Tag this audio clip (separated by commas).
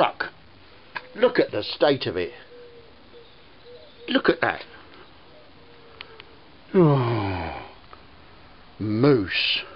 Speech